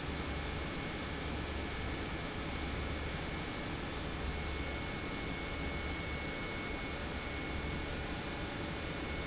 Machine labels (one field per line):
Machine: pump